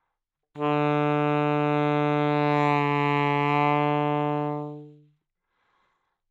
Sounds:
music, musical instrument, woodwind instrument

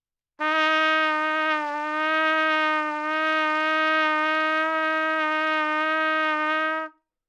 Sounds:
trumpet, musical instrument, music, brass instrument

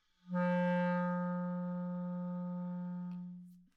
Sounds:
woodwind instrument, musical instrument, music

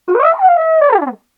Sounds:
musical instrument, brass instrument, music

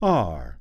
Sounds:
speech, human voice, man speaking

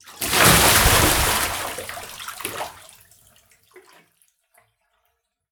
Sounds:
bathtub (filling or washing), home sounds, splatter, liquid

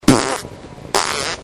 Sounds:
fart

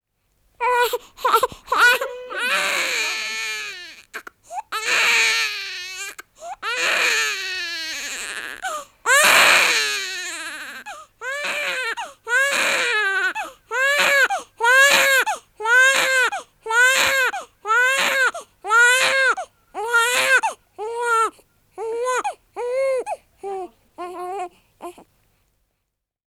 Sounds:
sobbing, human voice

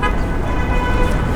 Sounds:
honking, vehicle, motor vehicle (road), alarm, car

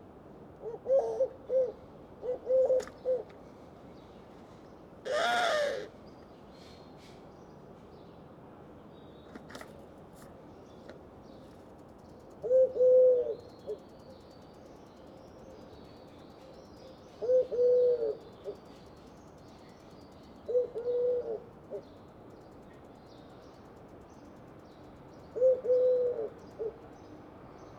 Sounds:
bird, wild animals, animal

